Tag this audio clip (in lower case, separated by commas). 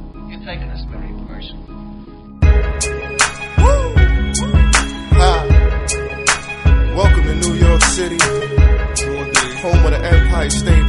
speech, music